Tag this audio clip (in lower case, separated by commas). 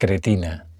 speech, human voice, male speech